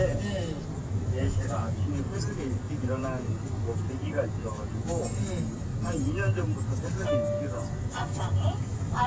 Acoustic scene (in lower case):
car